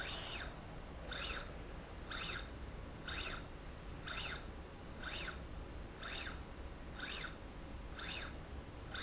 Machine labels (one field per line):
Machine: slide rail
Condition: normal